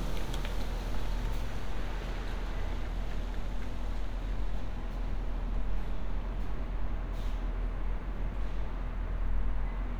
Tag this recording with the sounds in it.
engine of unclear size